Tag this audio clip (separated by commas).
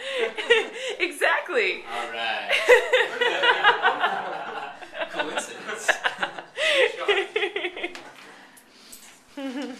Speech